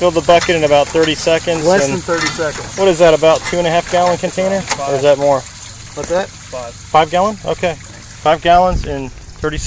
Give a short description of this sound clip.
Men are speaking with water running and some banging around